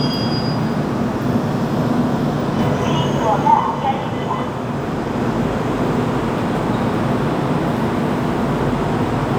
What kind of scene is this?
subway station